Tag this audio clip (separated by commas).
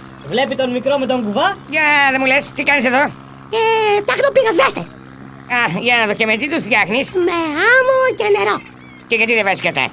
Speech